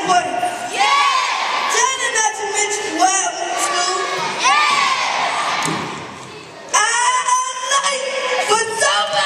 Child talking and an audience of children responding